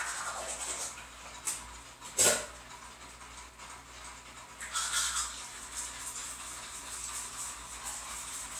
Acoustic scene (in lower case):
restroom